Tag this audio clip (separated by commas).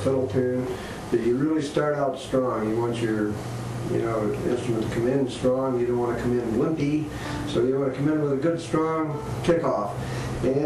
Speech